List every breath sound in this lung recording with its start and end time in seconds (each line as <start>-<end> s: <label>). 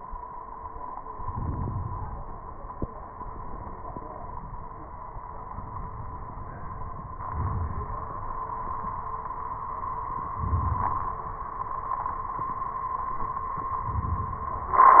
1.01-2.40 s: inhalation
7.22-8.12 s: inhalation
10.30-11.20 s: inhalation
13.87-14.77 s: inhalation